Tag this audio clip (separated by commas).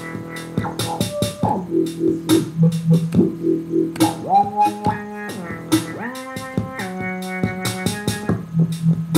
Dubstep, Music, Electronic music